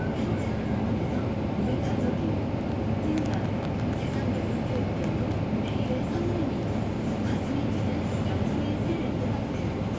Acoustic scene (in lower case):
bus